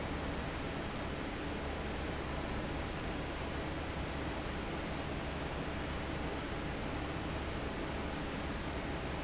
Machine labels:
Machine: fan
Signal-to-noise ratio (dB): -6 dB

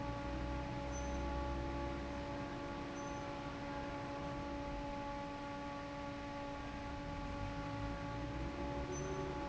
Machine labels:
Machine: fan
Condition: normal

